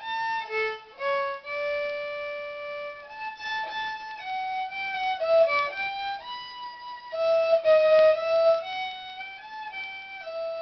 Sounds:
musical instrument
music
fiddle

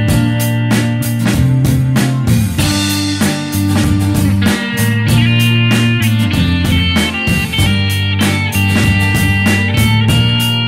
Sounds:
music

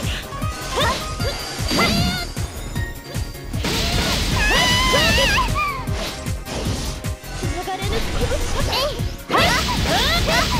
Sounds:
speech
music
pop

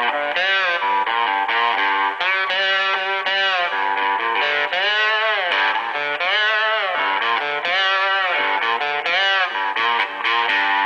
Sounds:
plucked string instrument
guitar
music
musical instrument

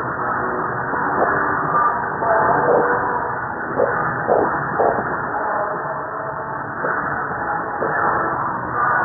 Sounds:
music
rock music

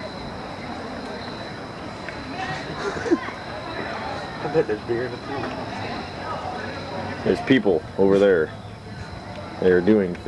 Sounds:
speech

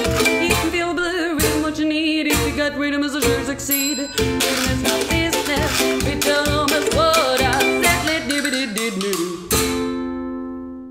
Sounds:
playing washboard

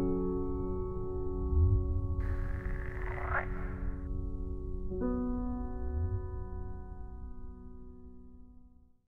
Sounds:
croak
frog

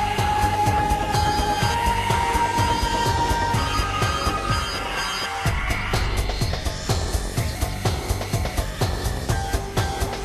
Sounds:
music

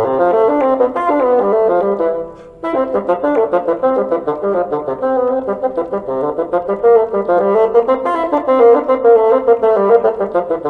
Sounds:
playing bassoon

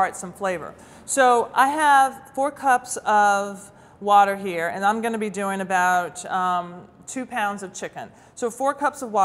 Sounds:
speech

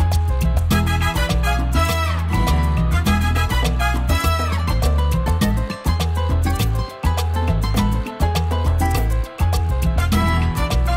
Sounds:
music

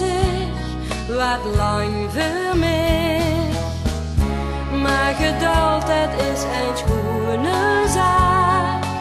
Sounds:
music

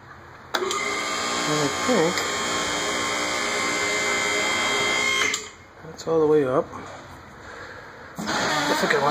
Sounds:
speech

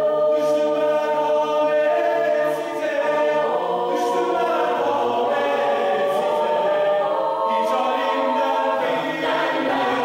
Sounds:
music
choir

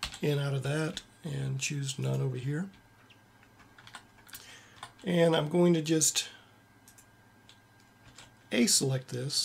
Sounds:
computer keyboard
typing

